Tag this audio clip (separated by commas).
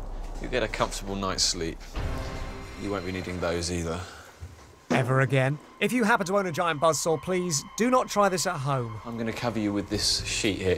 Music, Speech